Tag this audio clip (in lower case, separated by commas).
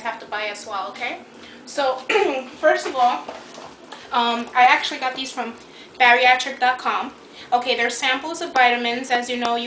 speech